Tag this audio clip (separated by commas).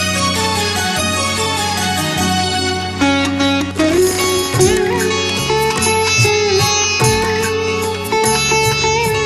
playing sitar